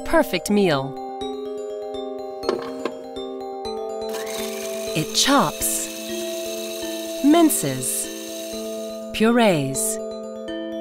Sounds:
Blender

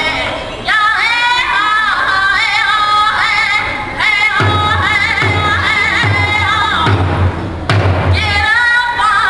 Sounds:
Female singing, Music

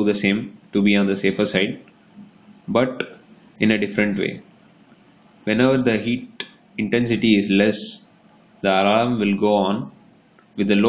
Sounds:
Speech

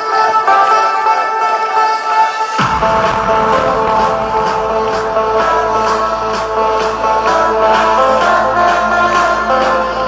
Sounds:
Roll, Music

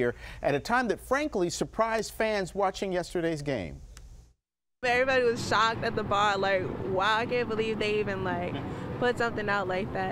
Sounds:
Speech

